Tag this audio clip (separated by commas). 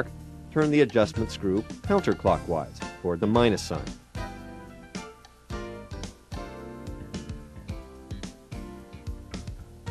Speech, Music